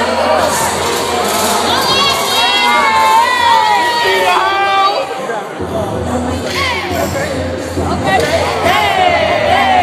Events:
[0.00, 9.82] music
[0.32, 1.77] speech noise
[1.56, 5.07] cheering
[2.42, 3.06] speech noise
[5.01, 5.94] man speaking
[5.02, 8.64] conversation
[6.37, 7.06] speech noise
[6.89, 7.37] man speaking
[7.79, 8.63] female speech
[8.63, 9.82] speech noise

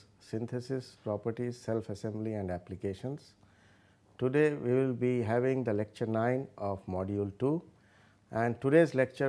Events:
[0.00, 9.25] background noise
[0.16, 3.36] male speech
[3.42, 4.07] breathing
[4.18, 7.65] male speech
[7.68, 8.25] breathing
[8.28, 9.25] male speech

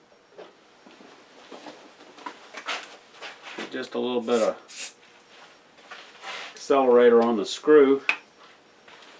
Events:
[0.00, 9.15] mechanisms
[3.41, 3.65] walk
[4.65, 4.95] spray
[6.54, 7.98] male speech
[8.08, 8.16] tap
[8.83, 9.15] surface contact

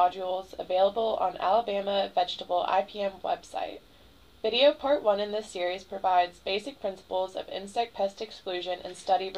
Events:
[0.00, 3.75] female speech
[0.00, 9.35] mechanisms
[4.42, 9.35] female speech
[8.78, 9.01] surface contact
[9.32, 9.35] tick

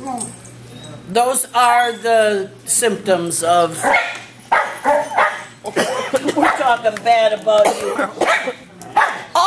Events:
[0.00, 0.26] human voice
[0.00, 9.45] mechanisms
[0.02, 0.53] generic impact sounds
[0.64, 0.84] generic impact sounds
[0.69, 0.92] squeal
[0.71, 0.96] male speech
[1.08, 2.47] female speech
[1.76, 2.01] squeal
[2.63, 3.77] female speech
[3.47, 3.60] squeal
[3.82, 4.07] bark
[4.09, 4.21] generic impact sounds
[4.26, 4.49] surface contact
[4.48, 4.77] bark
[4.78, 5.46] generic impact sounds
[4.81, 5.01] dog
[5.11, 5.37] bark
[5.59, 5.69] generic impact sounds
[5.61, 5.71] human voice
[5.72, 6.36] cough
[6.10, 6.18] generic impact sounds
[6.20, 8.12] female speech
[6.34, 6.56] bark
[6.49, 6.80] surface contact
[6.89, 6.98] generic impact sounds
[7.34, 7.41] generic impact sounds
[7.59, 7.93] cough
[8.18, 8.54] cough
[8.23, 8.47] bark
[8.75, 8.91] generic impact sounds
[8.91, 9.22] bark

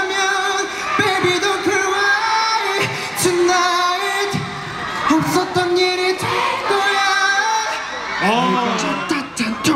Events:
[0.01, 9.75] crowd
[0.01, 9.75] music
[0.06, 0.68] male singing
[0.91, 2.90] male singing
[3.31, 4.40] male singing
[4.92, 6.27] male singing
[6.62, 7.88] male singing
[8.12, 8.78] male speech
[8.72, 9.75] male singing

